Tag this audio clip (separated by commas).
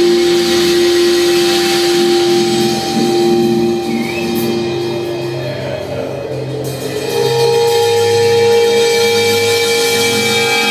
Guitar, Music